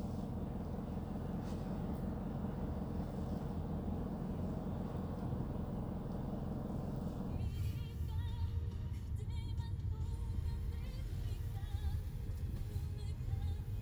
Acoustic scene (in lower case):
car